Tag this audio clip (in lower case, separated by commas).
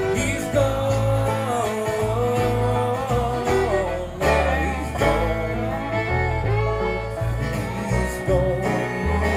music, singing, bluegrass